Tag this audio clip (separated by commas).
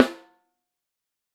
Drum, Percussion, Musical instrument, Snare drum, Music